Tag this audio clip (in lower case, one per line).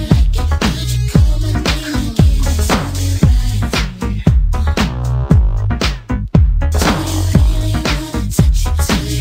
music